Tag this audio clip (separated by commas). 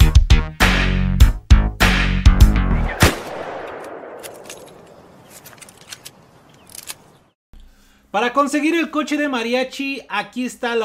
Speech, Music